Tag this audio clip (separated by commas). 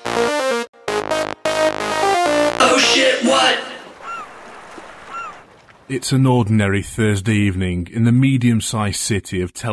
Music, Speech